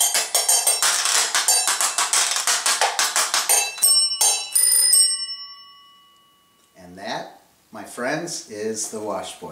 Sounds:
playing washboard

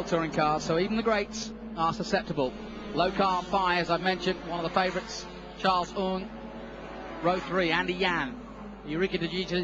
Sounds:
Motor vehicle (road), Vehicle, Car, Speech

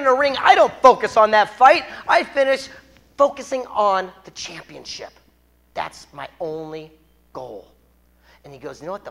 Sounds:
Speech

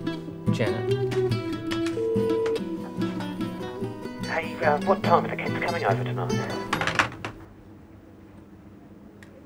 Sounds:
inside a small room, Speech, Music

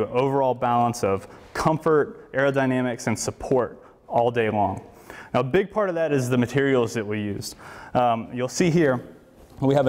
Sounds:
Speech

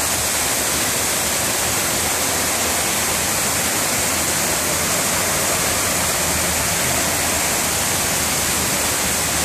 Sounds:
Rain on surface

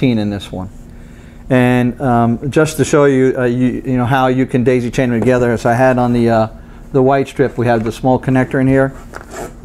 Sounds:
Speech

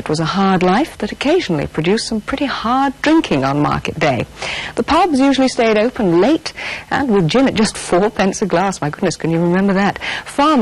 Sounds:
Speech

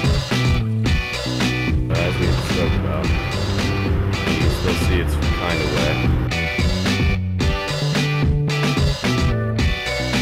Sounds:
Speech, Music

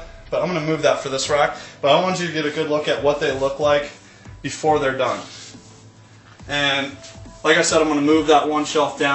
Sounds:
Music, Speech

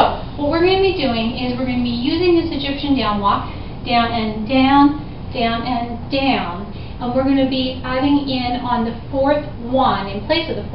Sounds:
Speech

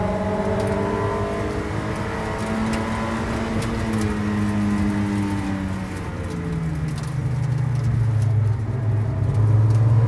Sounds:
auto racing, Vehicle, Car

